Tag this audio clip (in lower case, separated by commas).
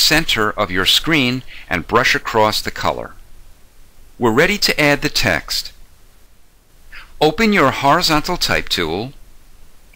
speech, narration